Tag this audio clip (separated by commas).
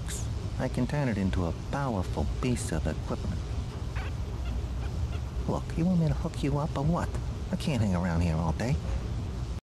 Speech